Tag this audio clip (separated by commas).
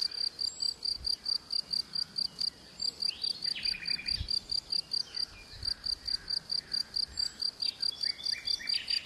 Insect, Bird, tweeting, Cricket, bird song, tweet